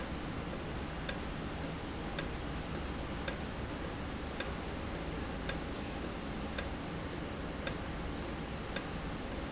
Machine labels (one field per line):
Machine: valve